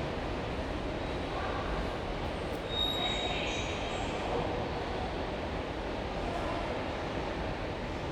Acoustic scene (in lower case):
subway station